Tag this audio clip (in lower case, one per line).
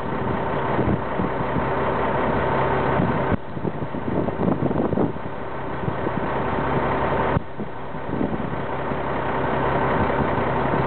vehicle